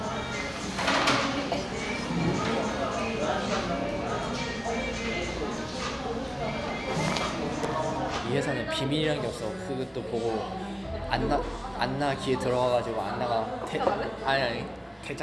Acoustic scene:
cafe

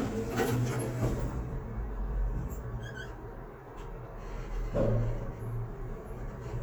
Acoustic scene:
elevator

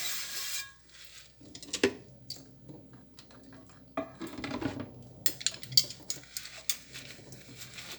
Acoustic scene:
kitchen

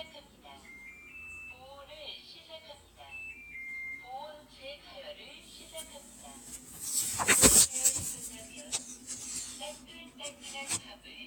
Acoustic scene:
kitchen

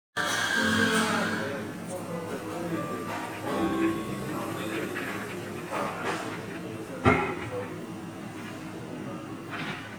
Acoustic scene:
cafe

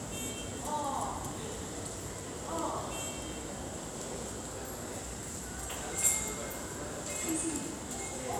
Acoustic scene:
subway station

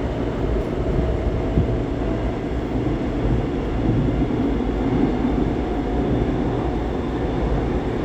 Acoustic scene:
subway train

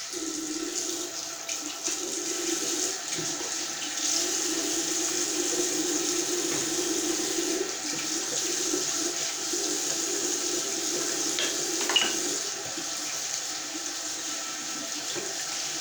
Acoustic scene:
restroom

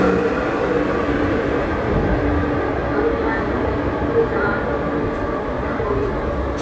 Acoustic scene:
subway station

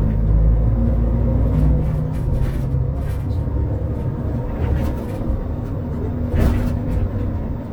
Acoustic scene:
bus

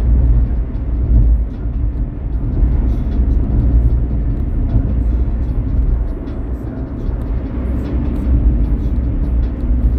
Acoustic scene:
car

